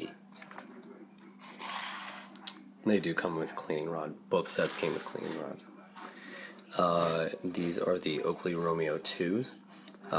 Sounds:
Speech

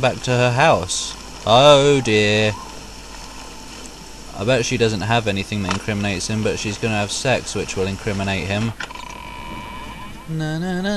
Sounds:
Speech, outside, urban or man-made

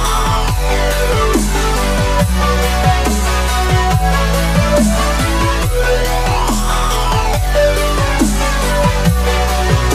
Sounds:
Music

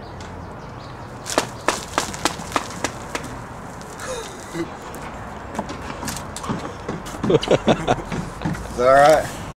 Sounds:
Speech

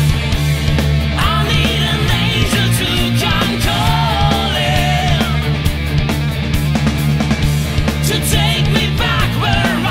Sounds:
Singing, Heavy metal, Music, Punk rock

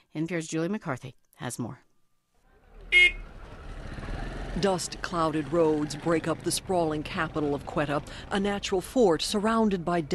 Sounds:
Speech

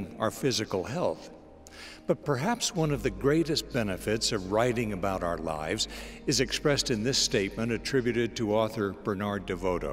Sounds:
Speech, Music

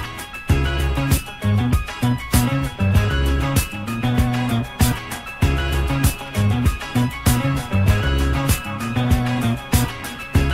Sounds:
Music

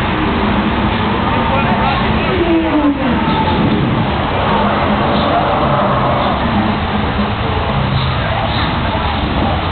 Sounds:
Speech

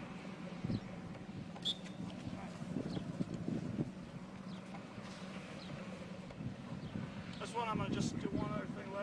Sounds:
Speech

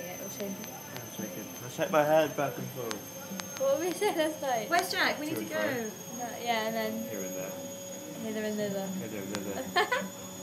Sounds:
Speech

